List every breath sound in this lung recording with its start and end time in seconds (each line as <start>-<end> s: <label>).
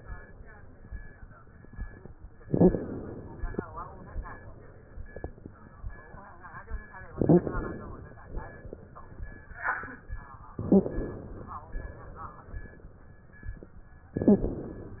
2.43-3.55 s: inhalation
2.45-2.77 s: wheeze
3.61-5.03 s: exhalation
7.15-7.48 s: wheeze
7.15-8.20 s: inhalation
8.29-9.43 s: exhalation
10.62-11.56 s: inhalation
10.66-10.99 s: wheeze
11.65-13.07 s: exhalation
14.19-15.00 s: inhalation
14.25-14.57 s: wheeze